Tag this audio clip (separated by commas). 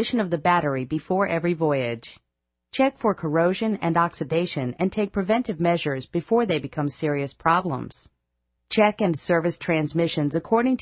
Speech